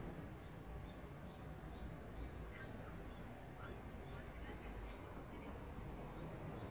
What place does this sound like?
residential area